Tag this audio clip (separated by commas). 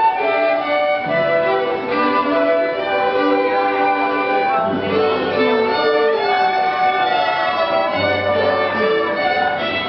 Music